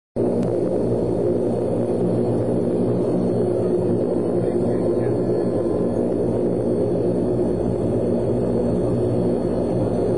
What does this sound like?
A plane flying